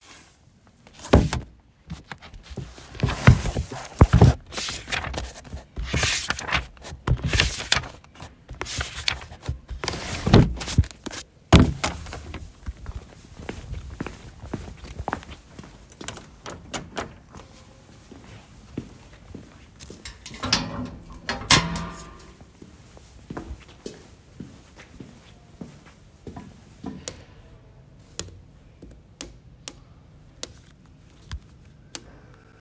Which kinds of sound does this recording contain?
door, footsteps